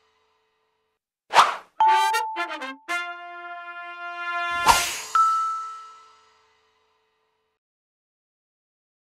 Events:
0.0s-0.9s: music
1.3s-1.7s: sound effect
1.8s-7.6s: music
1.8s-2.8s: ding
4.6s-4.9s: sound effect
5.1s-6.5s: ding

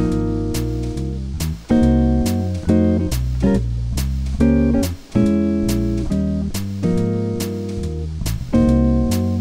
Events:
0.0s-9.4s: background noise
0.0s-9.4s: music

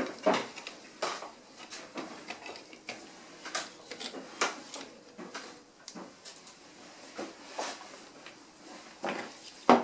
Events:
0.0s-9.8s: background noise
0.1s-0.4s: generic impact sounds
0.5s-0.7s: generic impact sounds
1.0s-1.1s: generic impact sounds
1.0s-1.3s: scrape
1.5s-2.6s: generic impact sounds
1.7s-1.9s: scrape
2.8s-3.0s: generic impact sounds
3.0s-3.4s: surface contact
3.4s-3.6s: generic impact sounds
3.9s-4.1s: generic impact sounds
4.2s-4.7s: surface contact
4.3s-4.5s: generic impact sounds
4.7s-4.9s: generic impact sounds
5.1s-5.4s: generic impact sounds
5.8s-6.1s: generic impact sounds
6.2s-6.5s: generic impact sounds
6.6s-7.3s: surface contact
7.1s-7.3s: generic impact sounds
7.4s-7.9s: scrape
7.5s-7.7s: generic impact sounds
7.7s-8.1s: surface contact
8.1s-8.5s: generic impact sounds
8.6s-9.1s: surface contact
8.9s-9.3s: generic impact sounds
9.4s-9.8s: generic impact sounds

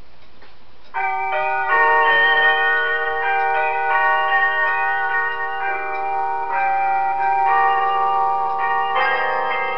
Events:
0.0s-9.7s: background noise
0.1s-0.5s: tick
0.8s-0.9s: tick
0.9s-9.7s: music

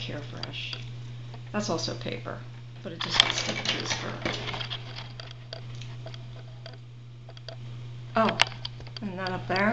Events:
0.0s-0.7s: female speech
0.0s-9.7s: mechanisms
0.4s-0.5s: tick
0.7s-0.8s: tick
1.3s-1.4s: generic impact sounds
1.5s-2.4s: female speech
2.8s-3.2s: female speech
3.0s-5.3s: generic impact sounds
3.4s-4.1s: female speech
5.5s-6.3s: generic impact sounds
6.6s-6.9s: generic impact sounds
7.2s-7.6s: generic impact sounds
8.1s-8.4s: female speech
8.2s-8.5s: tick
8.6s-8.7s: tick
8.8s-9.0s: generic impact sounds
8.9s-9.0s: tick
9.0s-9.7s: female speech
9.2s-9.3s: tick
9.5s-9.6s: tick

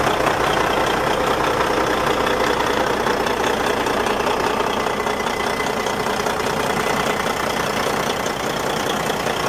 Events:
0.0s-9.4s: medium engine (mid frequency)

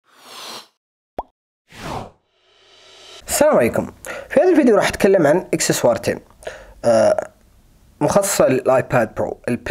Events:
0.0s-0.7s: sound effect
1.1s-1.3s: plop
1.6s-3.2s: sound effect
3.2s-9.7s: mechanisms
3.2s-6.3s: man speaking
6.8s-7.3s: man speaking
8.0s-9.3s: man speaking
9.4s-9.7s: man speaking

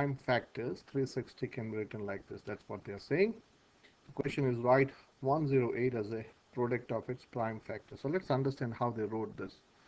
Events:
0.0s-3.3s: male speech
0.0s-9.8s: background noise
4.1s-4.9s: male speech
4.9s-5.1s: breathing
5.2s-6.4s: male speech
6.5s-9.6s: male speech

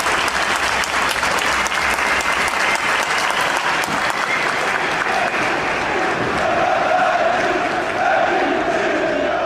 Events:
0.0s-6.0s: applause
0.0s-9.4s: background noise
0.0s-9.4s: crowd
7.8s-9.4s: battle cry
9.1s-9.4s: whistling

